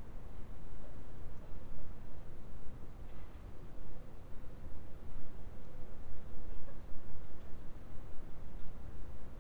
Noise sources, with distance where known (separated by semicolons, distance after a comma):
background noise